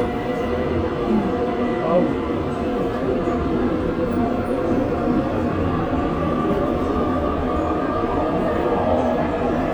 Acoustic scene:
subway train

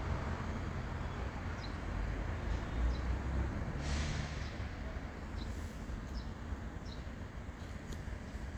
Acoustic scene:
residential area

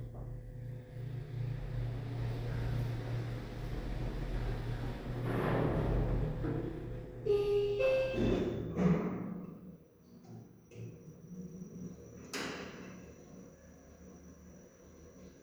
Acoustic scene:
elevator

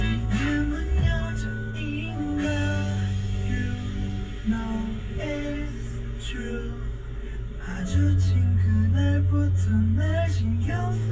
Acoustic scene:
car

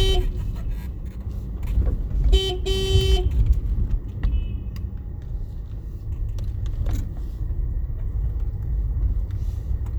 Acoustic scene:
car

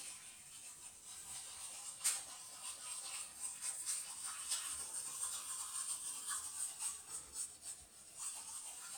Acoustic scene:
restroom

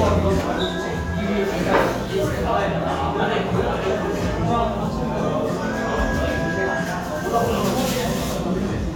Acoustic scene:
restaurant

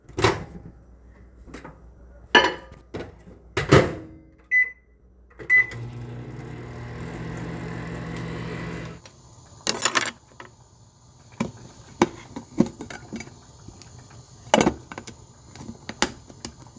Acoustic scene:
kitchen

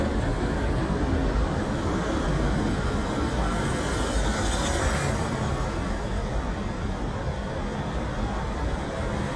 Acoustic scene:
street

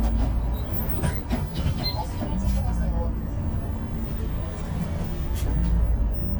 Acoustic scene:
bus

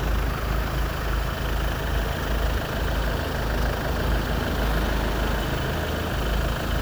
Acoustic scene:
street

